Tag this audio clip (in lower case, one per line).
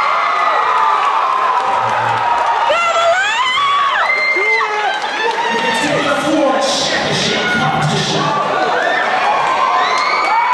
speech